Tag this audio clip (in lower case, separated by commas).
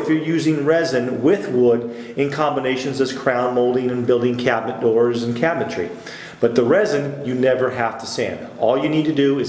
speech